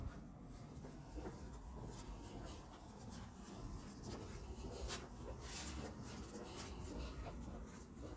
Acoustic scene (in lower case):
residential area